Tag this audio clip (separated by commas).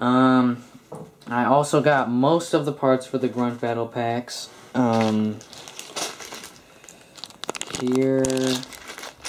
Speech, crinkling